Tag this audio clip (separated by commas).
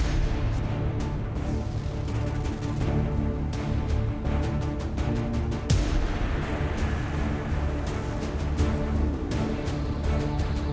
Soundtrack music, Music